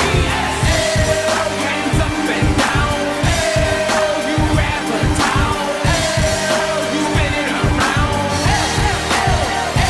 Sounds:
pop music
soundtrack music
music

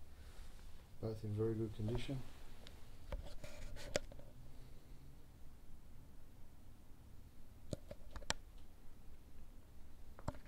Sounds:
speech

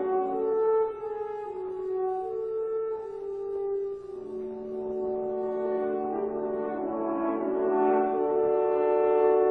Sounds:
playing french horn
brass instrument
french horn

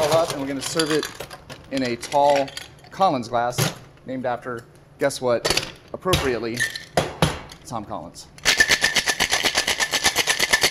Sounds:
speech
inside a small room

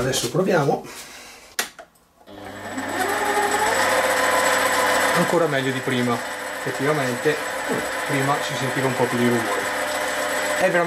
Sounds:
lathe spinning

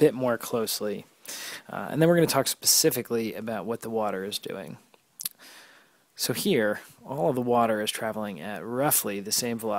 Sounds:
speech

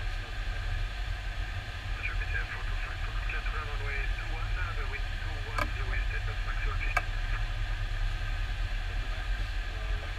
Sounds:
speech

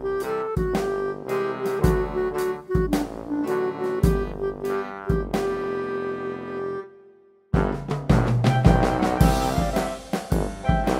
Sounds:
music

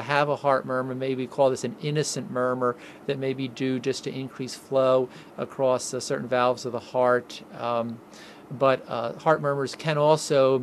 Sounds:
speech

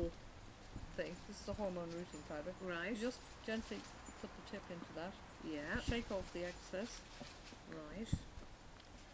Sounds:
speech

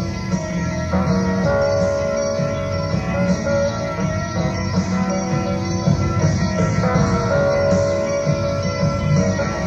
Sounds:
progressive rock
music

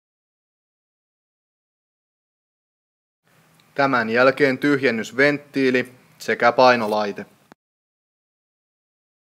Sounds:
speech

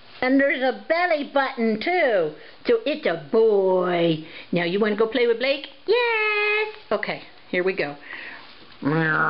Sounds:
speech

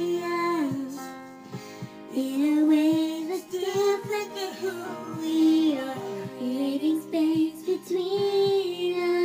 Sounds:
music

